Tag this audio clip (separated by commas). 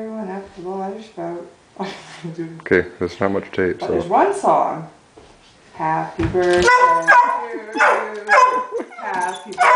Dog, Bow-wow, Animal, Speech, pets